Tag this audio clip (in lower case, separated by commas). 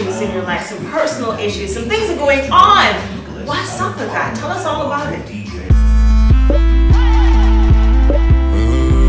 speech, music